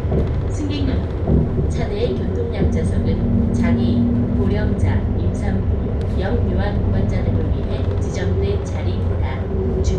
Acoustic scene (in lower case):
bus